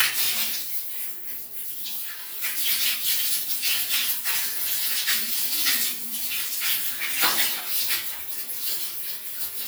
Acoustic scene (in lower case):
restroom